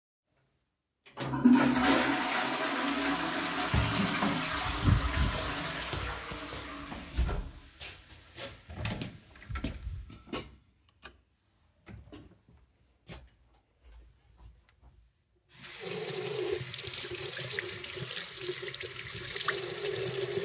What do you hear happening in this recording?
I flush the toilet. Then i leave the room and go to the bathroom. I turn on the light and wash my hands.